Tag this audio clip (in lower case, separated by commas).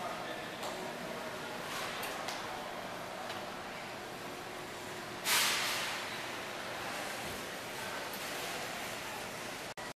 speech